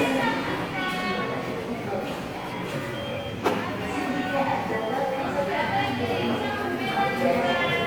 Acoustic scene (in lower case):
subway station